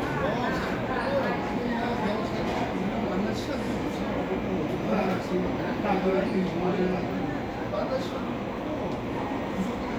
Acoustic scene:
cafe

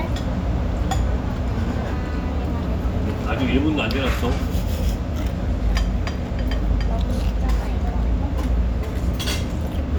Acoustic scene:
restaurant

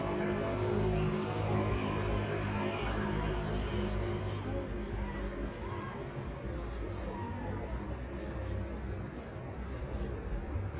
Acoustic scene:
street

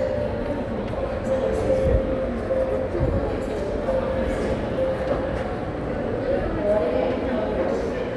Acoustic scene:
crowded indoor space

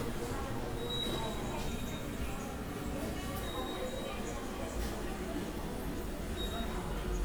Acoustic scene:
subway station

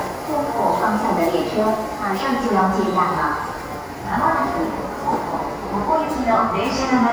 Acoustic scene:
subway station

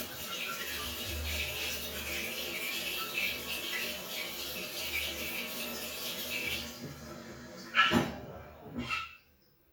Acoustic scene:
restroom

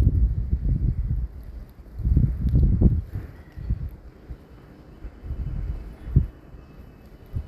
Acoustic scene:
residential area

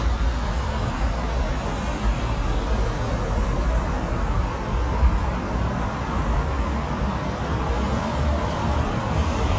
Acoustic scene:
street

